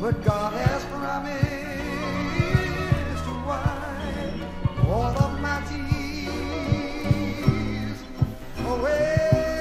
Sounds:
music

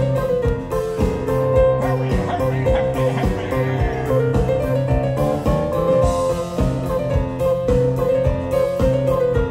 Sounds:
music

